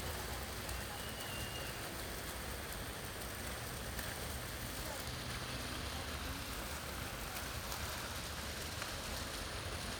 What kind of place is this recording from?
park